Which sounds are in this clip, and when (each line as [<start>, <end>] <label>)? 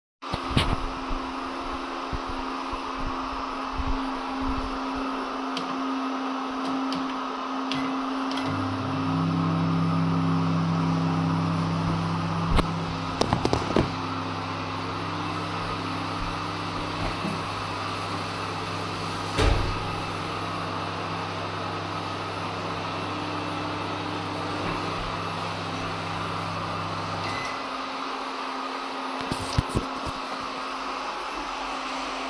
[0.00, 32.30] vacuum cleaner
[7.26, 27.93] microwave
[17.02, 19.39] running water